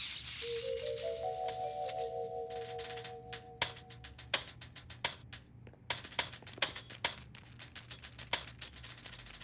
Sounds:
playing tambourine

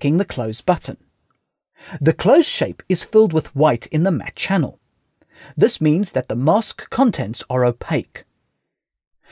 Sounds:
Speech

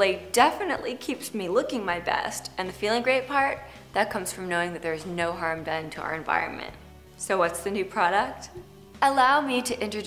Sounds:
Music, Speech

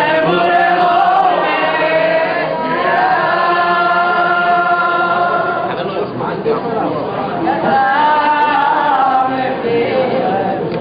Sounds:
Speech, Chant

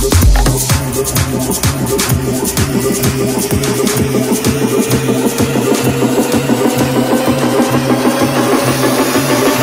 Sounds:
Music, House music

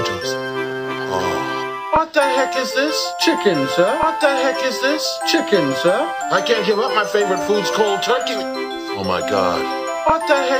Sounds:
Speech, Music, House music

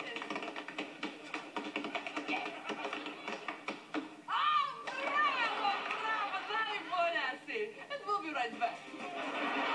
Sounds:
Speech

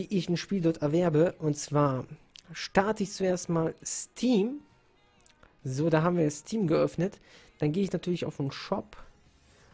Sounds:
Speech

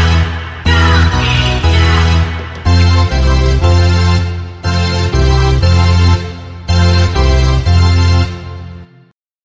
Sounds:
Music

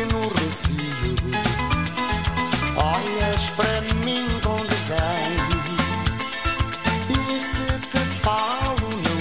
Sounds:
Mallet percussion, Glockenspiel, xylophone

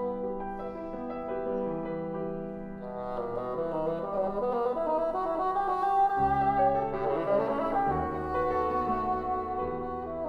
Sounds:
playing bassoon

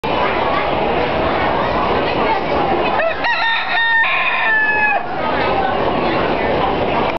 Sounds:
cock-a-doodle-doo, Speech, Chicken, Animal

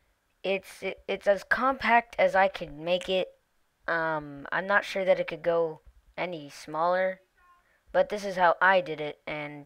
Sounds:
Speech

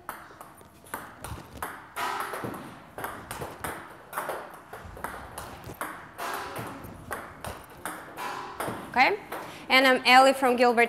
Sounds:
playing table tennis

